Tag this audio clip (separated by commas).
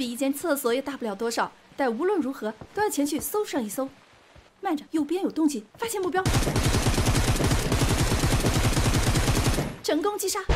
firing muskets